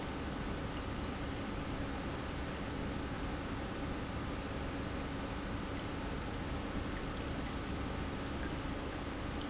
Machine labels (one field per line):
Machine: pump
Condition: normal